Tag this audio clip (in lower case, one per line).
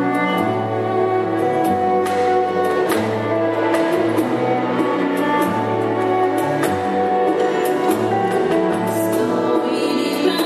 orchestra
music